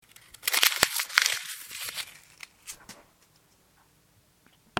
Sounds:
Crumpling

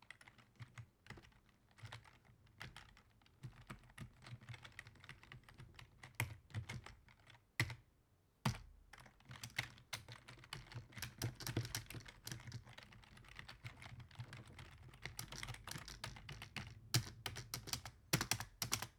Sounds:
Computer keyboard, Typing, home sounds

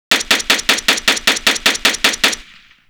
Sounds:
gunfire, Explosion

